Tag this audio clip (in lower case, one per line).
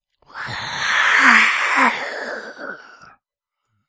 hiss